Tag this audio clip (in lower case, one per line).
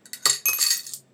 home sounds
coin (dropping)